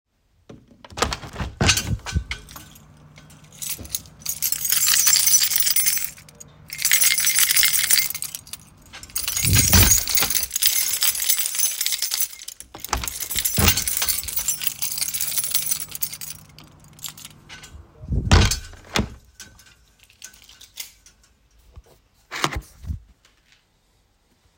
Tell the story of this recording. I open and close the window a couple of times while i am jiggling my keys in my hand at the same time.